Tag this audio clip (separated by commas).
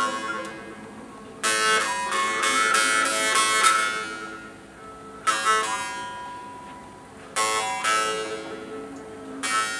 Musical instrument, Music, inside a small room, Plucked string instrument